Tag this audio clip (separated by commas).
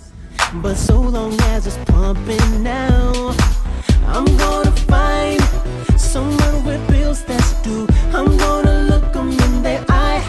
Music